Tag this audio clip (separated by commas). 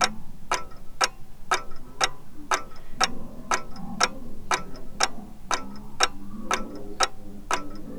Clock, Mechanisms, Tick-tock